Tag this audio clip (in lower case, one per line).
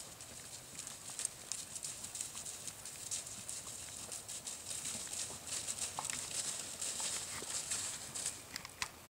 horse clip-clop
horse
animal
clip-clop